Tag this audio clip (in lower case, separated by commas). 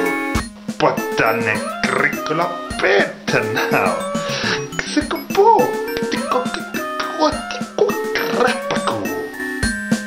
music, male speech